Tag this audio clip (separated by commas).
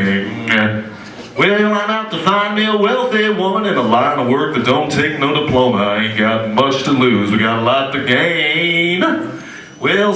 Speech